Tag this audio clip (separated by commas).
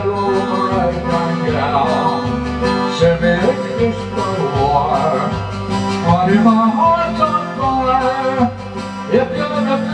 Music